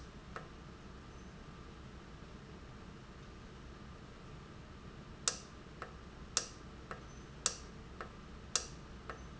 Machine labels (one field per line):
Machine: valve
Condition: normal